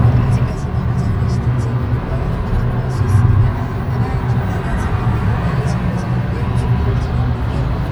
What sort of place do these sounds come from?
car